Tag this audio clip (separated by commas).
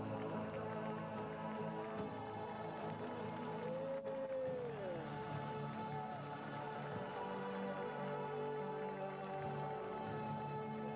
Music, Speech